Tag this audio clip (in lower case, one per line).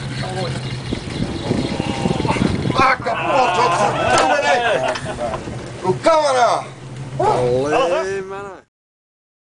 speech